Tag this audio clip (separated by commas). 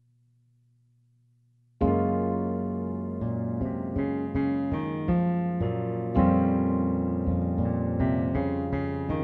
Keyboard (musical), Piano, Electric piano, Music